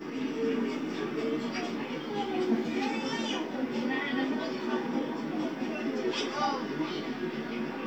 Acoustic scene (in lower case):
park